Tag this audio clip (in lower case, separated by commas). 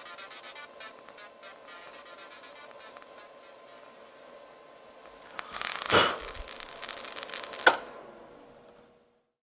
inside a small room